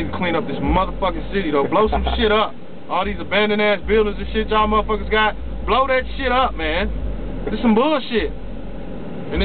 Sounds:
speech

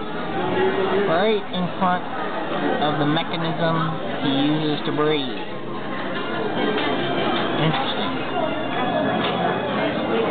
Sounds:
music, speech

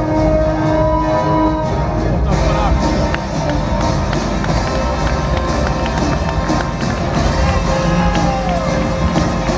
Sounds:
speech, music

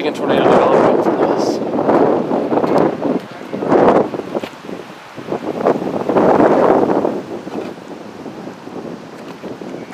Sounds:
speech

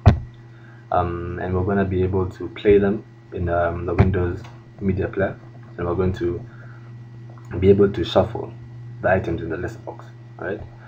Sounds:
speech

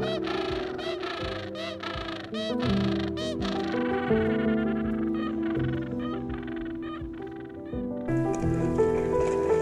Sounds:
penguins braying

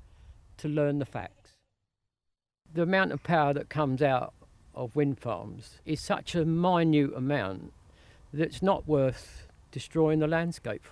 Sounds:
speech

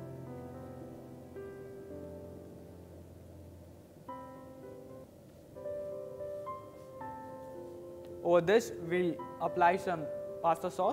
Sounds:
piano

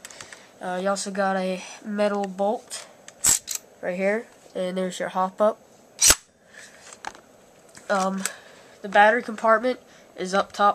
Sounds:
speech

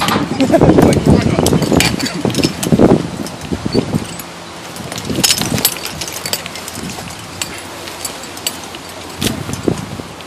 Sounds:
rustling leaves, speech, outside, rural or natural, ocean

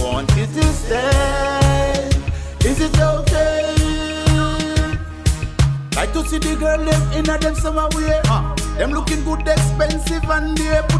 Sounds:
music, soundtrack music

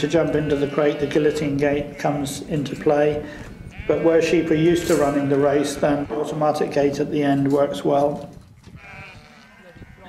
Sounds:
sheep, bleat, speech

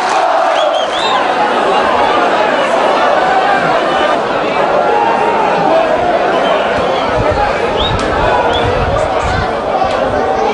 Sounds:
speech

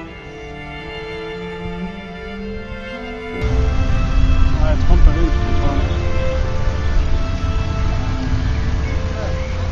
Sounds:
speech, music

